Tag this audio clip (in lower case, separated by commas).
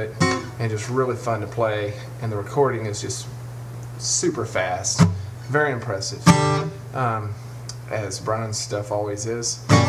musical instrument, music, guitar, speech, plucked string instrument